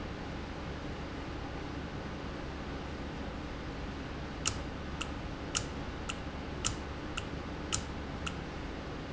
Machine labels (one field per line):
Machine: valve